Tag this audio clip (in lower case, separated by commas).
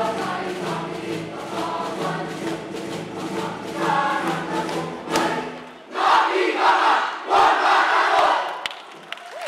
inside a large room or hall, music